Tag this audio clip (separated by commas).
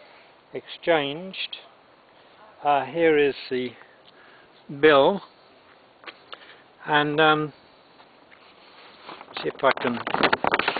Speech